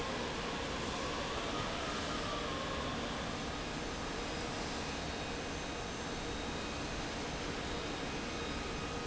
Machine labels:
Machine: fan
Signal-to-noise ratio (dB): -6 dB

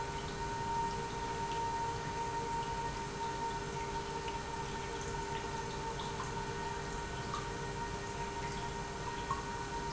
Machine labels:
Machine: pump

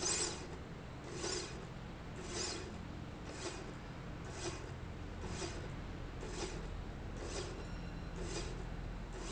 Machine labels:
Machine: slide rail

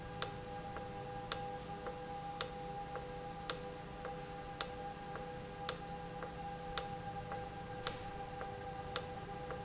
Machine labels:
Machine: valve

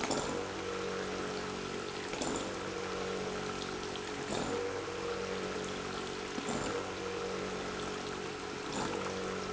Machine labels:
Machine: pump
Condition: abnormal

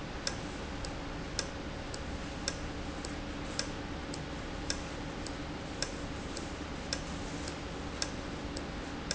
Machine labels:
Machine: valve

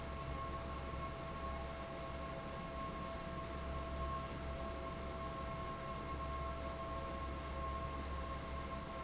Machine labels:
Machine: fan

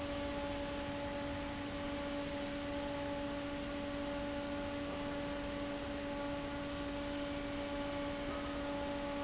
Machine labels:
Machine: fan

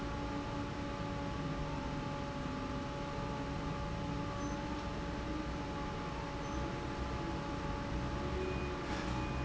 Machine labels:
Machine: fan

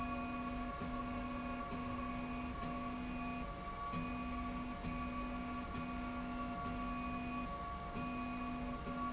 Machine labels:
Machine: slide rail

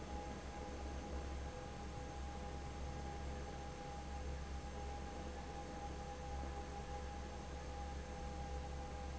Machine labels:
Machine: fan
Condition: abnormal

